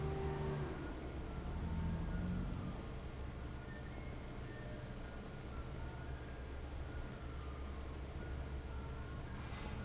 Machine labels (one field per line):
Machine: fan